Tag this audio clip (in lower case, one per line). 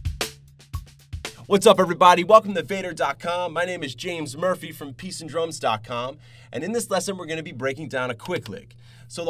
speech
music